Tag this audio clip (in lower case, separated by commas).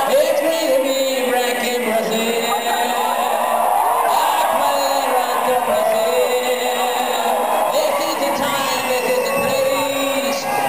male singing